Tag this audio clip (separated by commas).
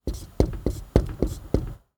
Domestic sounds, Writing